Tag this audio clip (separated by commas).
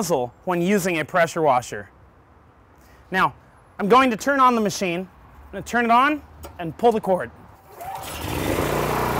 Speech